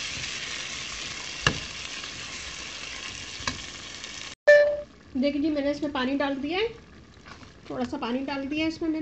A frying sound followed by a short beep and then a woman's voice